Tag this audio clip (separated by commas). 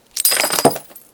Shatter, Glass